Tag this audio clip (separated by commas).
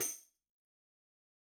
Music, Tambourine, Percussion, Musical instrument